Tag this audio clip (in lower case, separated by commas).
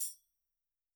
musical instrument, music, tambourine, percussion